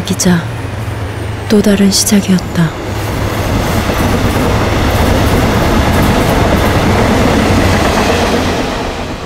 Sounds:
speech, train, railroad car, rail transport

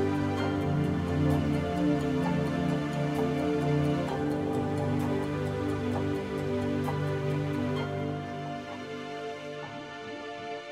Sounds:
music, tick-tock

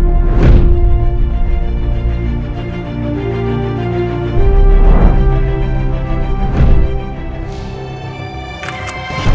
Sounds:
music

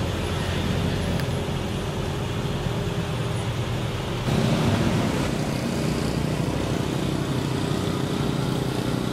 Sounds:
car, traffic noise, vehicle

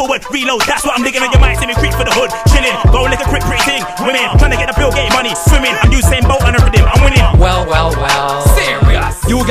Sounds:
music

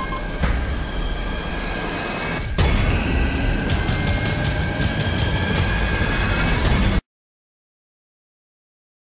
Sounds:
music, sound effect

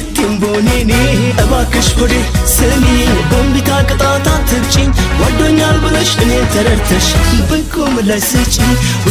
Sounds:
music, singing, music of africa

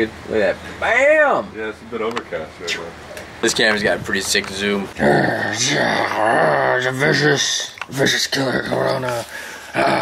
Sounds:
speech, inside a small room, outside, rural or natural

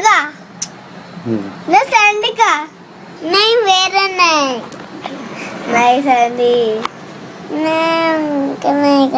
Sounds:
kid speaking, speech, inside a small room

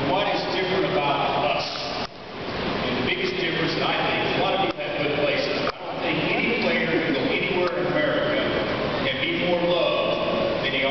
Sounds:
male speech, speech, monologue

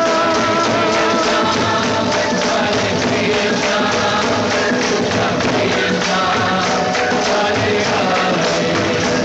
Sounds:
music

